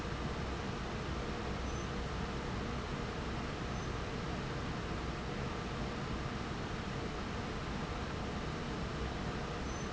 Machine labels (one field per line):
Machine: fan